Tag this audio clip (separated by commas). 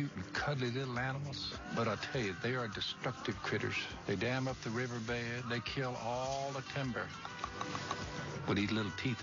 Music, Speech